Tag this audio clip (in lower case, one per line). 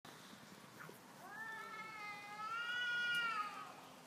animal
cat
domestic animals